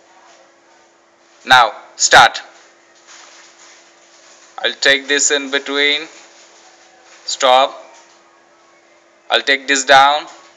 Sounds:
Speech

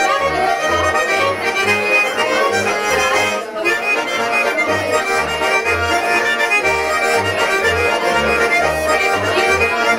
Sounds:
Music

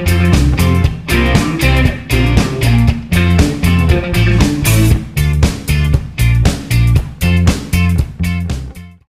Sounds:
Music

